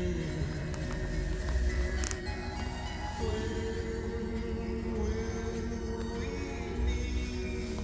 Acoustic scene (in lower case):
car